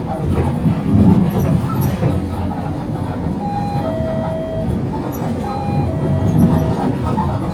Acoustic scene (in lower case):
bus